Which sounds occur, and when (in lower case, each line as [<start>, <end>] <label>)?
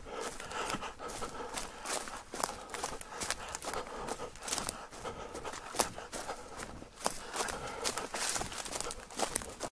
[0.00, 2.19] breathing
[0.13, 0.84] footsteps
[1.02, 1.26] footsteps
[1.49, 1.65] footsteps
[1.84, 2.12] footsteps
[2.27, 6.87] breathing
[2.28, 2.47] footsteps
[2.69, 2.90] footsteps
[3.18, 3.79] footsteps
[3.98, 4.17] footsteps
[4.27, 4.69] footsteps
[4.94, 5.13] footsteps
[5.28, 5.57] footsteps
[5.71, 5.88] footsteps
[6.09, 6.29] footsteps
[6.52, 6.69] footsteps
[6.96, 9.67] breathing
[6.99, 7.13] footsteps
[7.29, 7.55] footsteps
[7.79, 8.01] footsteps
[8.11, 8.91] footsteps
[9.05, 9.65] footsteps